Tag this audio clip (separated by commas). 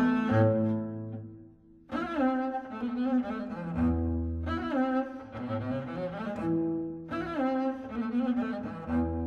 playing double bass